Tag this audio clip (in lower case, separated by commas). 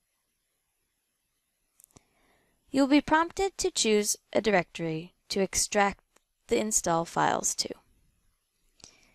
speech